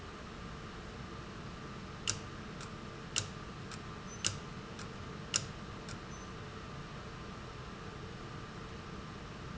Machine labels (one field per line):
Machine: valve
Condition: abnormal